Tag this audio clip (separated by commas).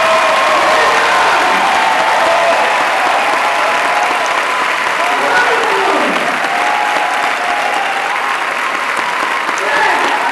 Applause, people clapping